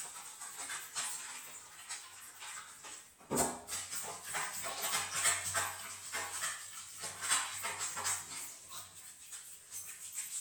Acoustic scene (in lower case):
restroom